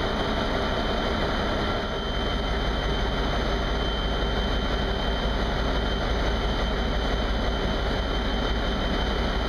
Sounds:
engine

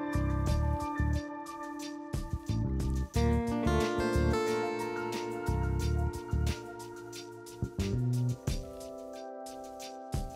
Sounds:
music

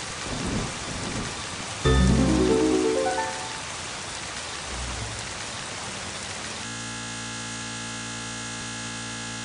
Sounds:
music

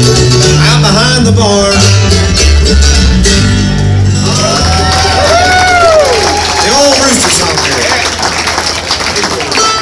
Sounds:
inside a public space
bluegrass
speech
music

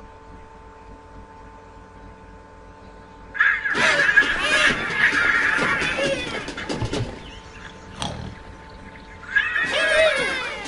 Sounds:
music

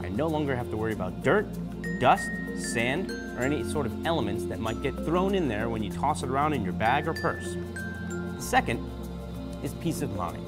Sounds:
music
speech

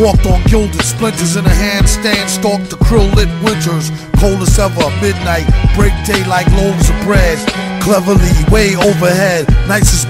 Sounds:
music

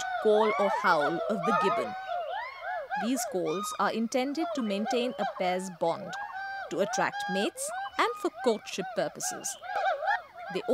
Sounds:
gibbon howling

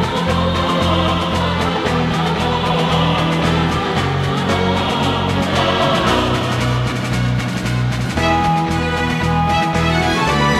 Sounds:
music

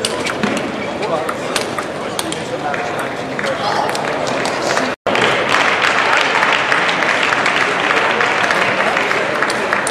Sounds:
speech

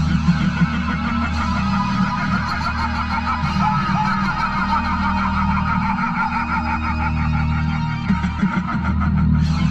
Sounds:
music
laughter

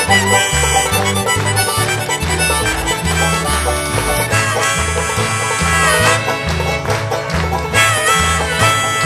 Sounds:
music

